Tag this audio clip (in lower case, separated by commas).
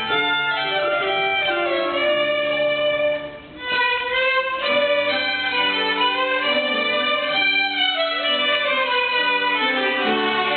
musical instrument, violin, music